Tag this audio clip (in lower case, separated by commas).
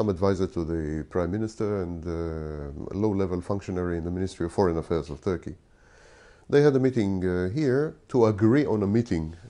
speech